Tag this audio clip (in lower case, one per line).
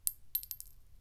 glass
chink